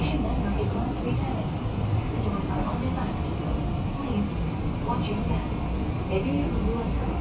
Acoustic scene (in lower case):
subway train